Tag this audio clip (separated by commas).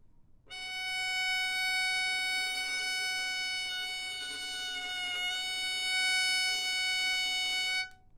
Bowed string instrument, Musical instrument, Music